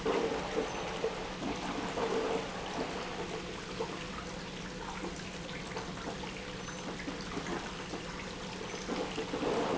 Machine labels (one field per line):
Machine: pump